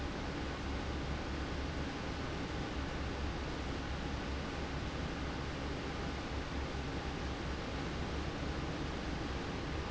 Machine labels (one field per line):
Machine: fan